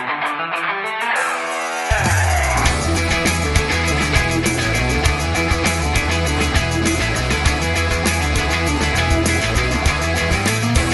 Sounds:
Music

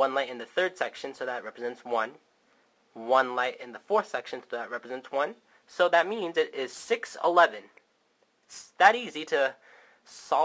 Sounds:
Speech

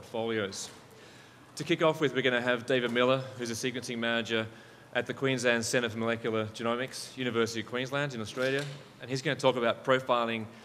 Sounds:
Speech

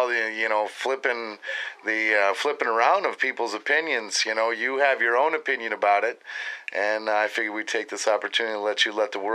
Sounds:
Speech

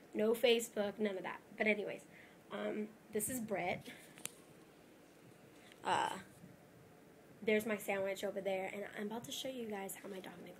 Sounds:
Speech

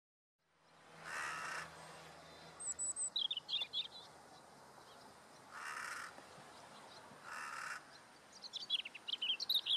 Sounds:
tweet, bird call, Bird

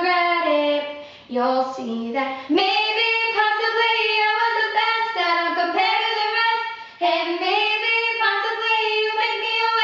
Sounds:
Female singing

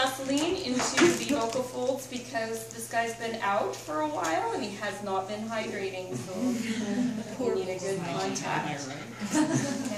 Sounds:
Female speech, Speech, Narration

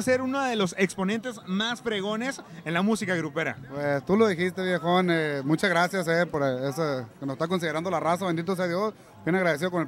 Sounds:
Speech

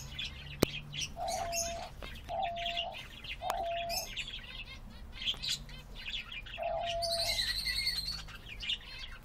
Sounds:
bird song, Chirp, tweeting, Bird

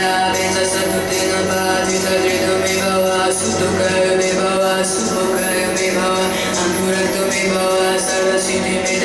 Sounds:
Mantra, Music

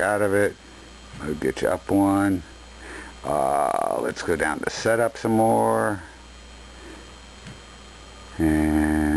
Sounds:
Speech

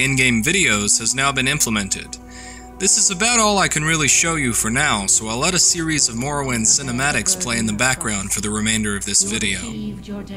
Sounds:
Music, Speech

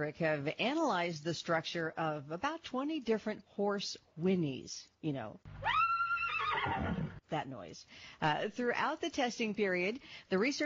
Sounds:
horse neighing

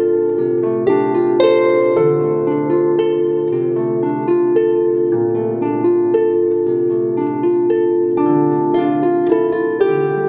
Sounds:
playing harp, Harp, Music

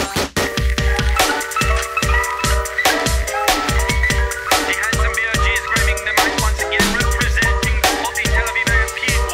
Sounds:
Drum and bass, Music

